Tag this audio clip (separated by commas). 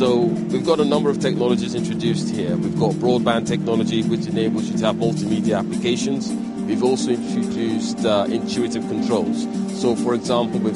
Speech, Music